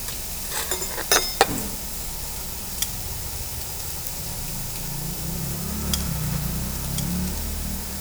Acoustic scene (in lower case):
restaurant